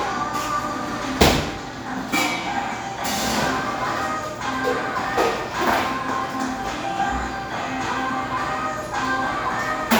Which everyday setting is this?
cafe